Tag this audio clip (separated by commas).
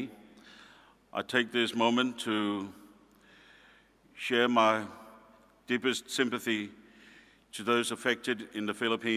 monologue, Male speech, Speech